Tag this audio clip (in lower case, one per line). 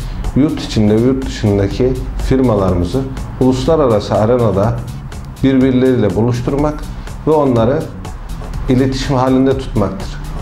music
speech